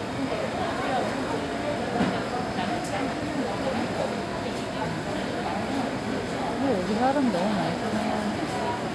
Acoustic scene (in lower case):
crowded indoor space